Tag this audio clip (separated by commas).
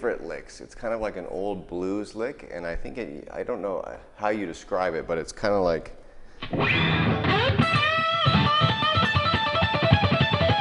Music, Electric guitar, Plucked string instrument, Musical instrument, Speech